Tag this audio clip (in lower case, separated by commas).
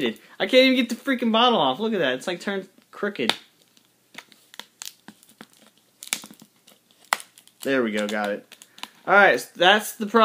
speech